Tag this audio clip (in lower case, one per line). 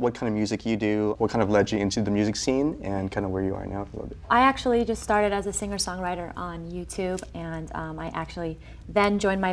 speech